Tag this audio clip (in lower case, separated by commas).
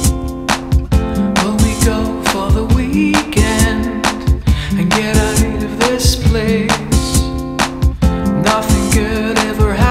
music